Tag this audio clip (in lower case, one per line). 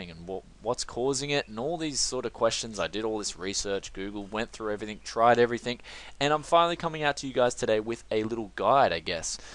speech